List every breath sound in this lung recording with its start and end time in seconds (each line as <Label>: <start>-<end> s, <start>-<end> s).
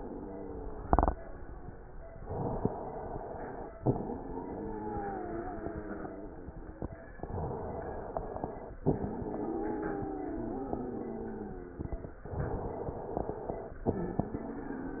Inhalation: 2.18-3.76 s, 7.17-8.79 s, 12.28-13.81 s
Exhalation: 3.79-6.85 s, 8.86-12.14 s, 13.87-15.00 s
Wheeze: 0.00-1.71 s, 3.79-6.85 s, 8.86-12.14 s, 13.87-15.00 s